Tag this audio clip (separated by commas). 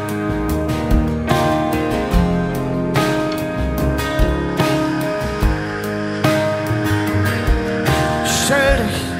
Music